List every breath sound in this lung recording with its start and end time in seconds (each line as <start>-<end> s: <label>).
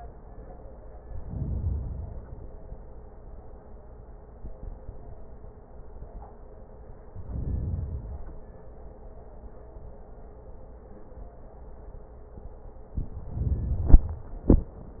1.10-2.53 s: inhalation
7.11-8.67 s: inhalation
12.93-14.43 s: inhalation